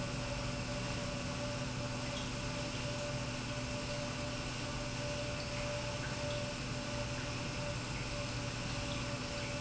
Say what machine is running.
pump